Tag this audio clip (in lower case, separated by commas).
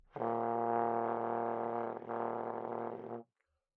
musical instrument, music, brass instrument